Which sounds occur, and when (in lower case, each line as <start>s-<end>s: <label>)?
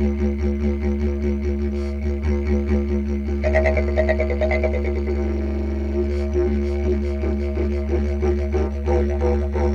0.0s-9.7s: music
1.7s-1.9s: breathing
6.1s-6.2s: breathing
6.6s-6.8s: breathing
7.0s-7.2s: breathing
7.3s-7.5s: breathing
7.7s-7.8s: breathing